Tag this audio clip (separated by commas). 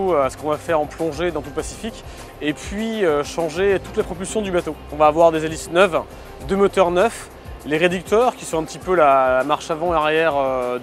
Speech, Music